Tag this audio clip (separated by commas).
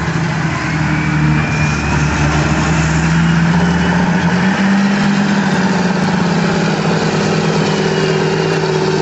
Vehicle